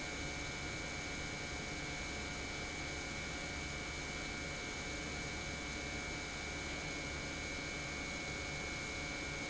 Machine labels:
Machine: pump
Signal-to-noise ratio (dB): 0 dB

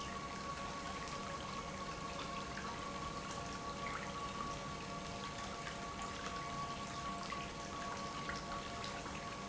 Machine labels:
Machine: pump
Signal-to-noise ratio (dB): 0 dB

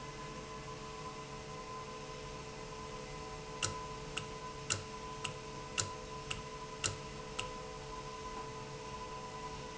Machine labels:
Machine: valve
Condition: normal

